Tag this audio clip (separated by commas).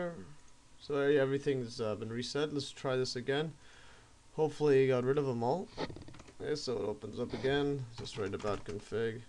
Speech